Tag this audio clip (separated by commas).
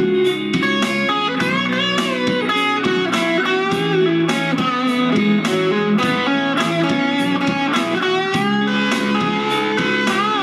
Strum, Guitar, Musical instrument, Music, Plucked string instrument